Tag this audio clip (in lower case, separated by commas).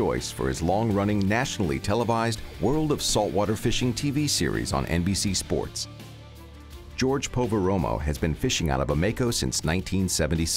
speech, music